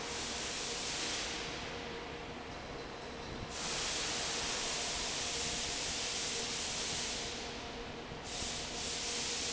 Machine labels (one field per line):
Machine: fan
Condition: normal